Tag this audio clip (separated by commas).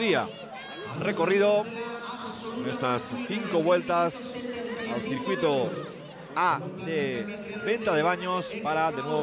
Speech